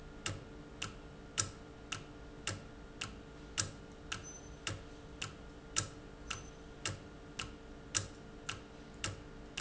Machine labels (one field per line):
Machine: valve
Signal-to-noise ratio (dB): 6 dB